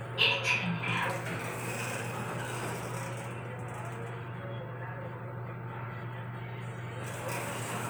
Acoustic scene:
elevator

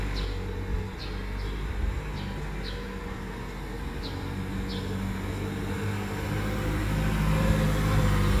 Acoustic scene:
residential area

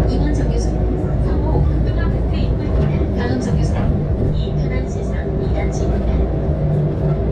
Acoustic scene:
bus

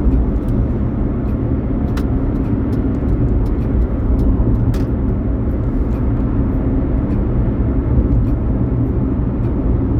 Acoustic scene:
car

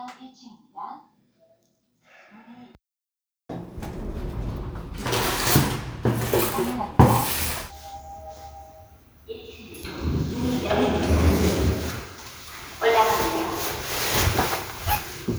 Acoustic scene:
elevator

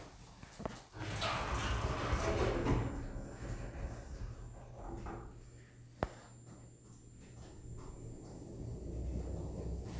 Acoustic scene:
elevator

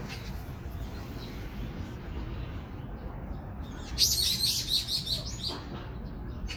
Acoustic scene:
park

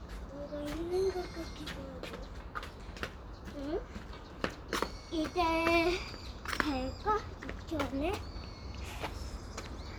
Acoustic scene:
park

